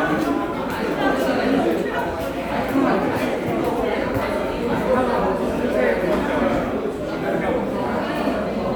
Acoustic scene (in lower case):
crowded indoor space